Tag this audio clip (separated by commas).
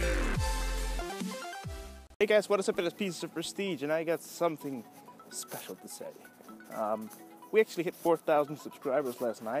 Speech, Music